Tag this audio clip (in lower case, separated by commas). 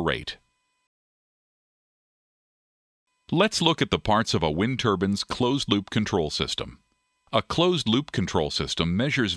speech